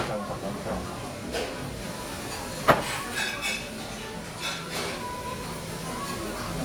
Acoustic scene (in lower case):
restaurant